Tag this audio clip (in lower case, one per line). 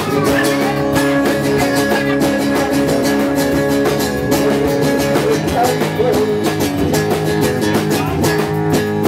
rock and roll
music